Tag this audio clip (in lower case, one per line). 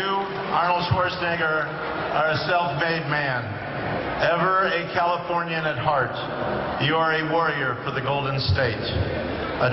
speech
man speaking
narration